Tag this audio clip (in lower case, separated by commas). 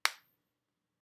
hands, finger snapping